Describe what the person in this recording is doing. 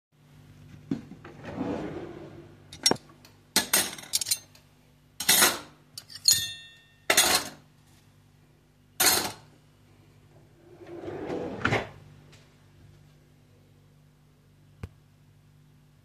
I opened the drawer for my cutlery in the kitchen, put in some cutlery and then closed the drawer again.